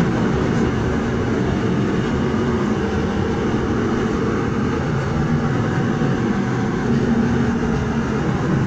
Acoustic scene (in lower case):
subway train